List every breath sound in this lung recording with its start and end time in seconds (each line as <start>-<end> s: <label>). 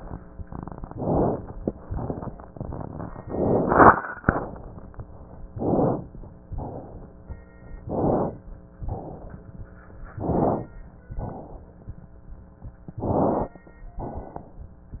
0.93-1.39 s: inhalation
0.93-1.39 s: crackles
1.82-2.28 s: exhalation
1.82-2.28 s: crackles
3.30-3.93 s: inhalation
3.30-3.93 s: crackles
4.23-4.86 s: exhalation
5.54-6.04 s: inhalation
5.54-6.04 s: crackles
6.58-7.16 s: exhalation
7.87-8.37 s: inhalation
7.87-8.37 s: crackles
8.90-9.47 s: exhalation
10.23-10.68 s: inhalation
10.23-10.68 s: crackles
11.20-11.77 s: exhalation
13.05-13.57 s: inhalation
13.05-13.57 s: crackles
14.06-14.57 s: exhalation